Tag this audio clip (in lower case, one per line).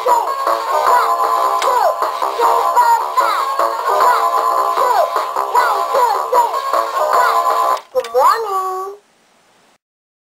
speech